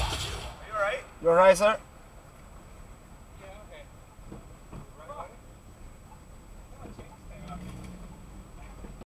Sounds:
vehicle
speech

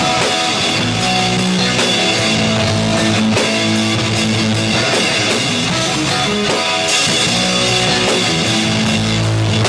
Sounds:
cymbal
guitar
bass drum
musical instrument
drum kit
music
hi-hat
drum

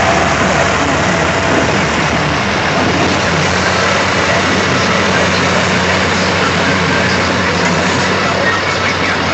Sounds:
speech

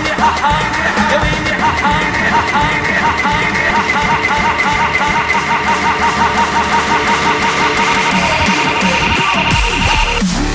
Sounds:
dubstep
electronic music
music

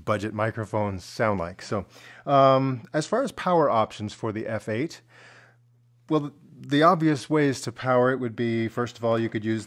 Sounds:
speech

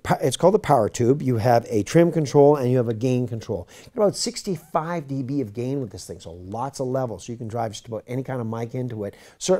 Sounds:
speech

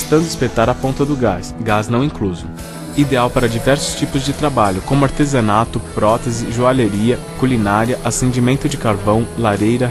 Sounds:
music
speech

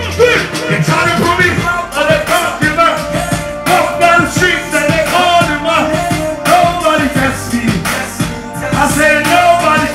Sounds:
music

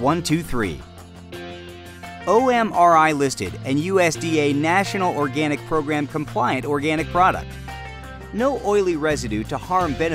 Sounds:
music
speech

